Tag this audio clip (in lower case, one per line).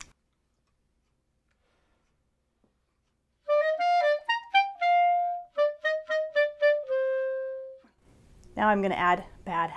playing clarinet